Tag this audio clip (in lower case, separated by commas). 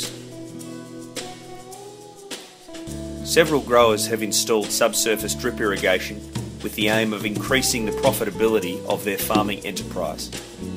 music, speech